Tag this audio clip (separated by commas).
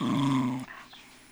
Animal, Domestic animals, Dog